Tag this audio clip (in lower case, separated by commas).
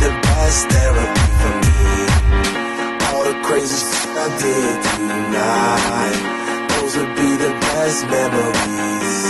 music, dance music